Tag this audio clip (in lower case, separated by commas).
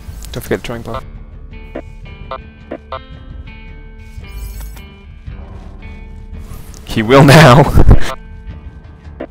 speech, music